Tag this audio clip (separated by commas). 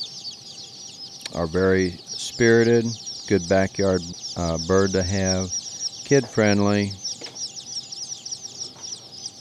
Speech